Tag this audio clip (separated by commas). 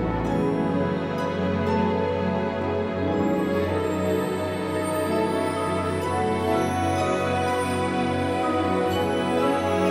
Music